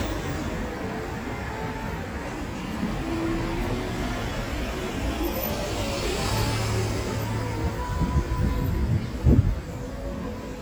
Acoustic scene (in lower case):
street